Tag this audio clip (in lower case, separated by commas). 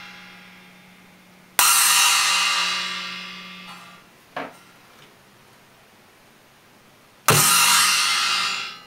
music